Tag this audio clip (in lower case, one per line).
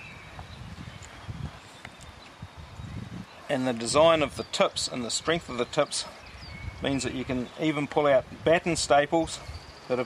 speech